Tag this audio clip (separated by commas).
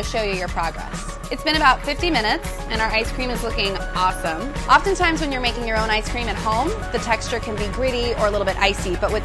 ice cream van